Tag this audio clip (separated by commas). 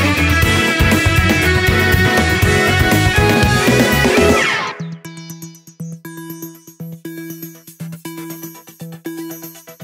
Cello, Bowed string instrument, Double bass